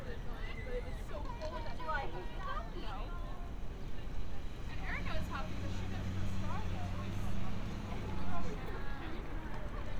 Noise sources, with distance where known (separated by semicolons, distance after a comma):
person or small group talking